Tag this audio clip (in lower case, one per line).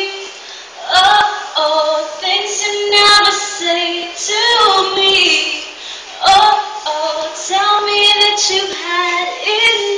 female singing